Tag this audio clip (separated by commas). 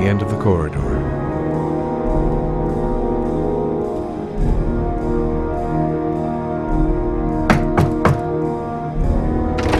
Speech, Music